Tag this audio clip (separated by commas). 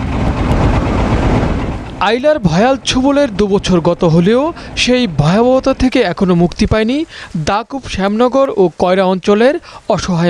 Speech